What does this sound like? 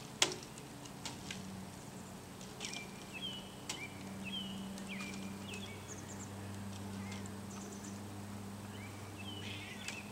Sound of birds and small branch snapping